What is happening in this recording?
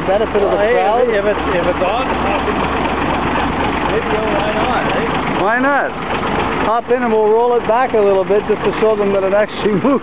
Men talking and a large truck idling